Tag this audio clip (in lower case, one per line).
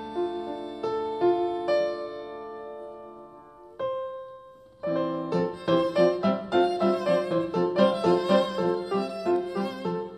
fiddle
bowed string instrument